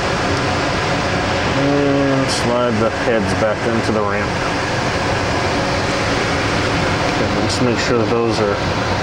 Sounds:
Speech, inside a small room

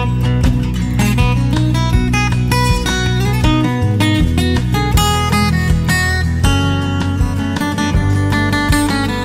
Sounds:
Music

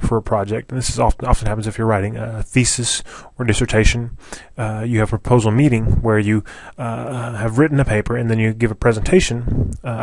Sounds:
Speech

